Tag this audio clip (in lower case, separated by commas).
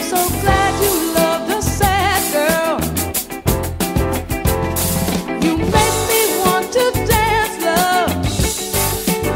music